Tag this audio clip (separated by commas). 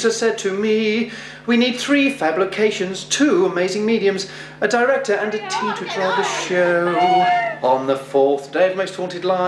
Speech, Male singing